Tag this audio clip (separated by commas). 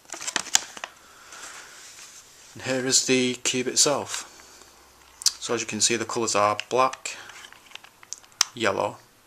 inside a small room, Speech